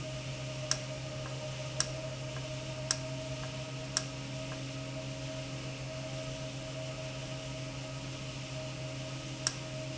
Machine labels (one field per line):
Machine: valve